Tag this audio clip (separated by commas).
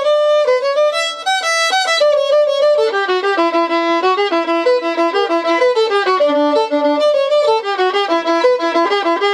Music, fiddle, Musical instrument